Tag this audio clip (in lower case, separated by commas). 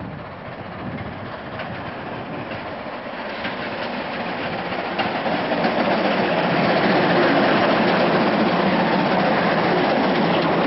train, rail transport, railroad car, vehicle